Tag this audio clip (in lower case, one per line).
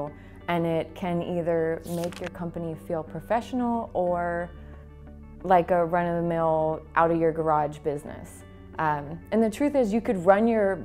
speech
music